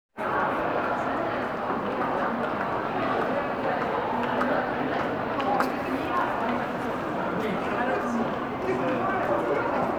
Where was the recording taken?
in a crowded indoor space